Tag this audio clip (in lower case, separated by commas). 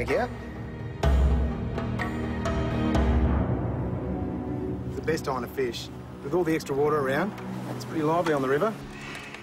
speech, music